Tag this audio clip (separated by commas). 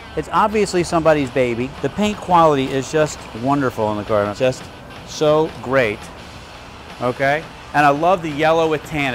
Speech, Music